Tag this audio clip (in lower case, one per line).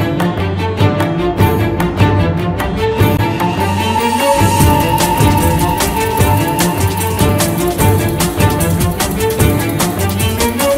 musical instrument
cello
fiddle
music